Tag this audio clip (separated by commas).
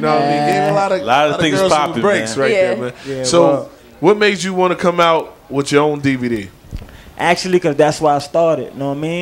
Speech